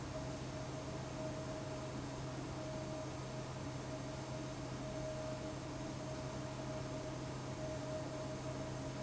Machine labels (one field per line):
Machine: fan